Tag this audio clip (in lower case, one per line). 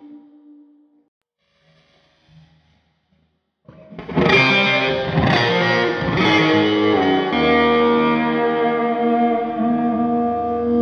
musical instrument
music